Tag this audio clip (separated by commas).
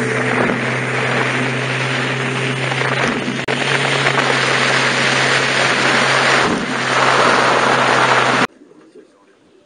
speedboat, Vehicle